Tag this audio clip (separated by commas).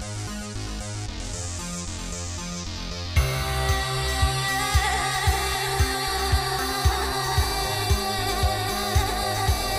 Music